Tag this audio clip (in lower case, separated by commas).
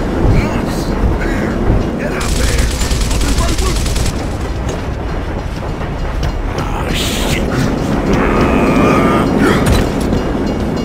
speech